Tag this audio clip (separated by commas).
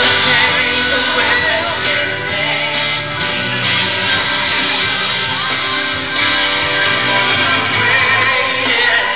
Music, Musical instrument